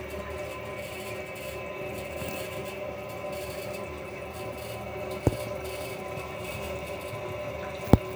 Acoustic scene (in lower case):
restroom